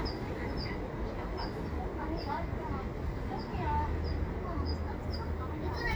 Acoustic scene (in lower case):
residential area